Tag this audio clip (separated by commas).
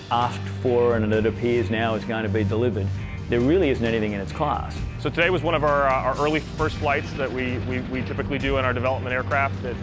Music, Speech